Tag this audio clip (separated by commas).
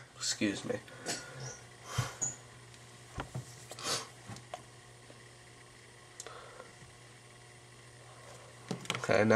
inside a small room, Speech